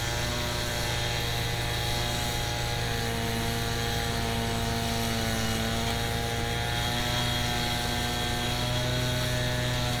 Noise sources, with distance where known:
unidentified powered saw, near

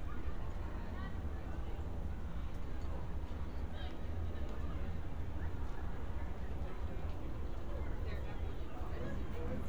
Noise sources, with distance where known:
person or small group talking, far

